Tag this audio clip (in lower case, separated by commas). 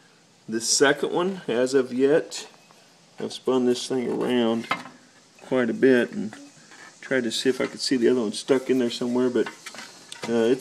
speech